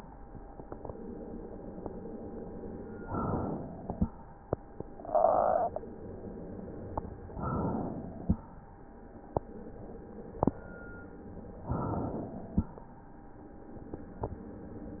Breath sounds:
Inhalation: 2.96-3.80 s, 7.25-8.21 s, 11.58-12.49 s
Exhalation: 3.79-4.92 s, 8.19-9.34 s, 12.48-13.69 s

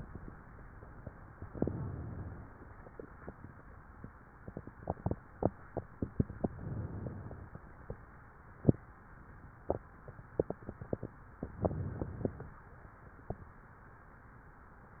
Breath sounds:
Inhalation: 1.45-2.48 s, 6.52-7.55 s, 11.56-12.58 s

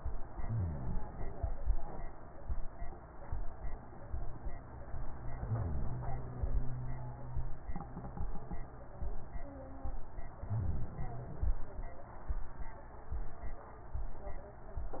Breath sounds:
Inhalation: 0.28-0.98 s, 5.36-6.48 s, 10.47-11.59 s

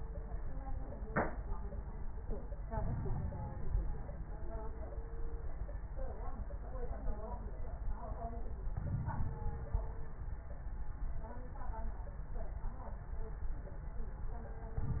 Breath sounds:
Inhalation: 2.69-4.23 s, 8.67-10.20 s
Crackles: 2.69-4.23 s, 8.67-10.20 s

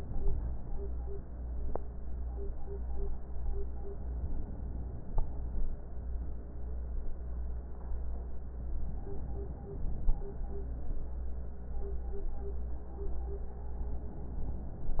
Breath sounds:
Inhalation: 4.06-5.56 s, 8.85-10.35 s

